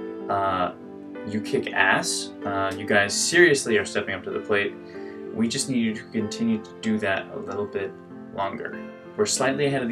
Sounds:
Music, Speech

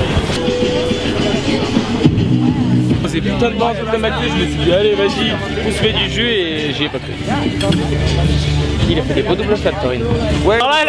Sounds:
Speech, Music

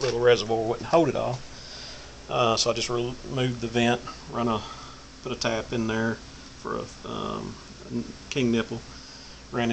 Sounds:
Speech

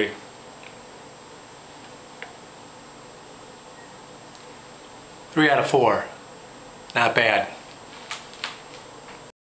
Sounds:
Speech

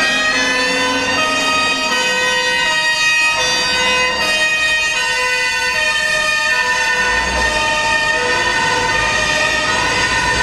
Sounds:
fire truck siren

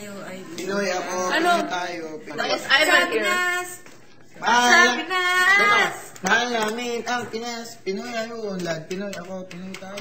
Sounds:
Speech

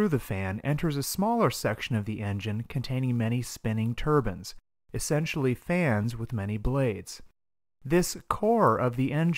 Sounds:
monologue, Speech

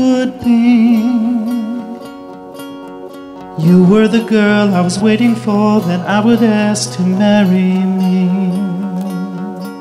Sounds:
Music, Plucked string instrument

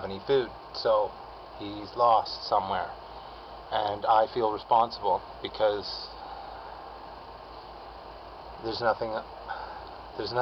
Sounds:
Speech

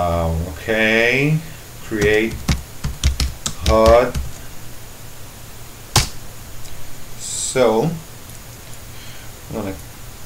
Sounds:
Computer keyboard

